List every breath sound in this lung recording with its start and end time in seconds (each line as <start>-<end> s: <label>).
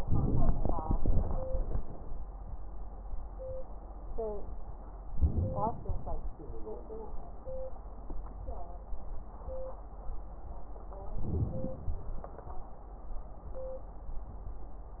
5.05-6.32 s: inhalation
5.05-6.32 s: crackles
11.19-11.99 s: inhalation
11.19-11.99 s: crackles